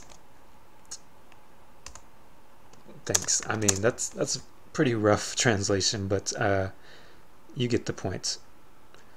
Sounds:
computer keyboard

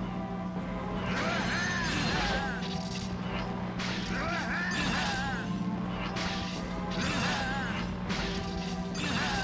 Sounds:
music

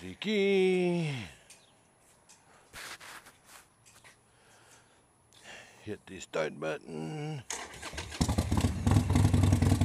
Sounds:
vehicle, speech

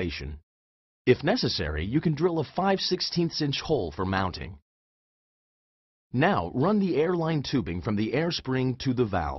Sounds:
speech

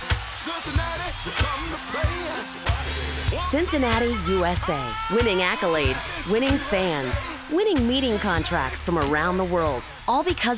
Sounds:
music, speech

